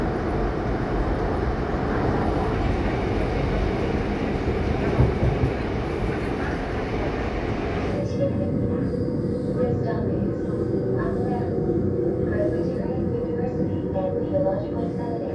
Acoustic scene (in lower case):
subway train